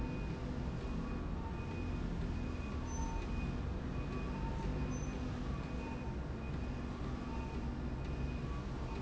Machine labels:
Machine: slide rail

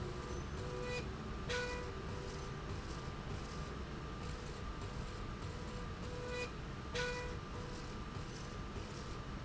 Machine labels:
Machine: slide rail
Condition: normal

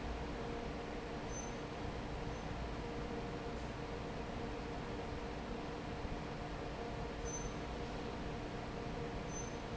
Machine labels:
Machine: fan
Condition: normal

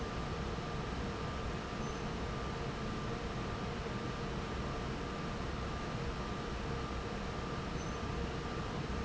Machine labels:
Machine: fan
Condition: normal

